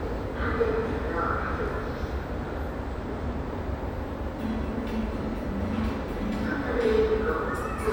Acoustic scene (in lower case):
subway station